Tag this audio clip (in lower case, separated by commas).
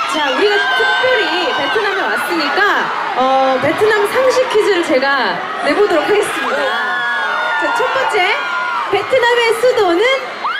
speech